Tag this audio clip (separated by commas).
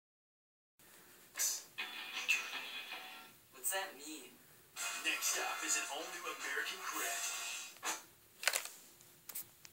Speech, Television, Music